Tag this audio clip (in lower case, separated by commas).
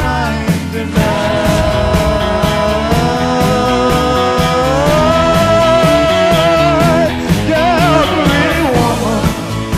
singing, independent music, guitar, drum kit